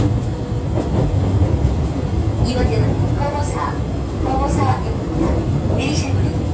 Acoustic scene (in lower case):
subway train